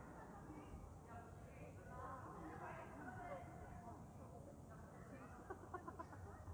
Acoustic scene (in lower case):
park